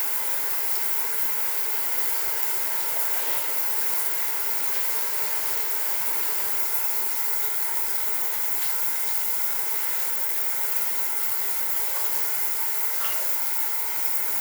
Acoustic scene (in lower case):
restroom